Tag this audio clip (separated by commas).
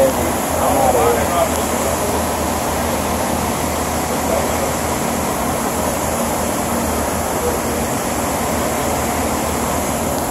Speech